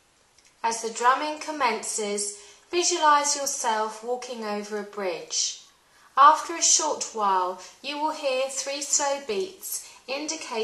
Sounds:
speech

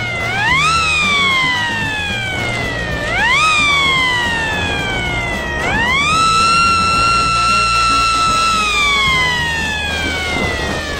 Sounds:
music
bicycle
whir

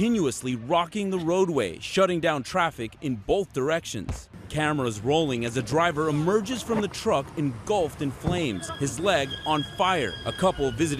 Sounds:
speech

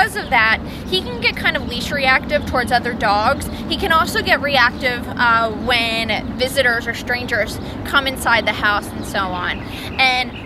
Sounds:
speech

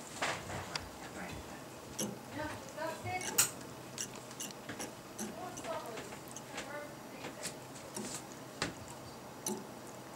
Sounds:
speech

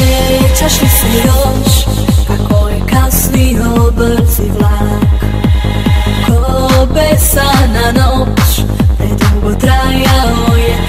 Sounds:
pop music
music

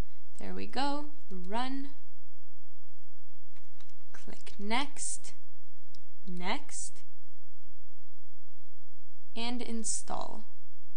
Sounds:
speech

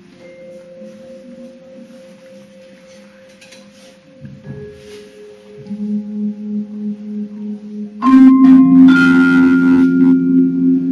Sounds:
playing vibraphone

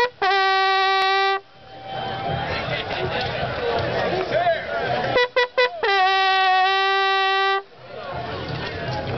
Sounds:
trumpet
music
speech
musical instrument

